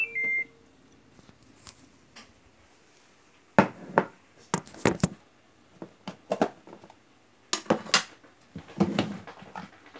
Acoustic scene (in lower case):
kitchen